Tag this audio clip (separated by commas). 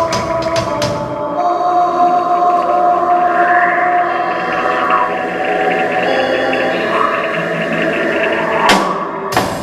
Musical instrument, Cymbal, Percussion, Drum kit, Bass drum, Music, Drum